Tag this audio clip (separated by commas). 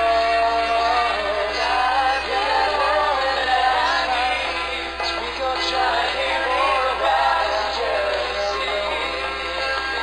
Music, inside a large room or hall, Singing